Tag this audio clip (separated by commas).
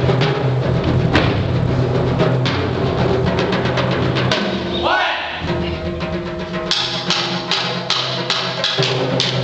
Percussion, Wood block, Music